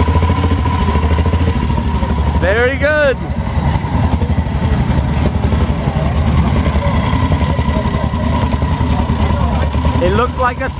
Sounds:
Speech, outside, urban or man-made, Motorcycle, Vehicle

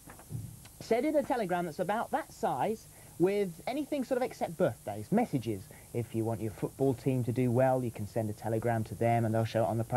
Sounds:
Speech

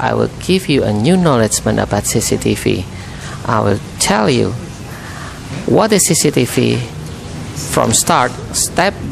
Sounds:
Speech

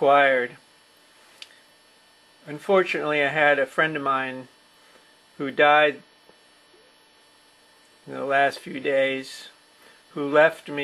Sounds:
Speech

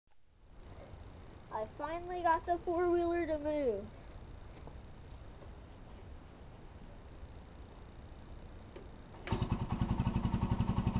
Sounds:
Speech, outside, rural or natural, Vehicle

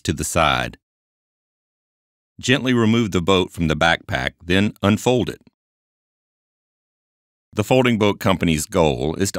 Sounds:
Speech

